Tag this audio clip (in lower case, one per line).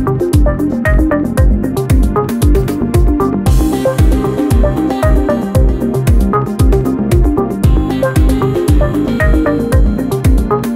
music